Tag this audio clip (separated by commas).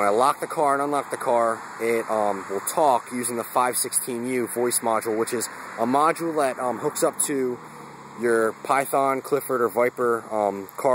Speech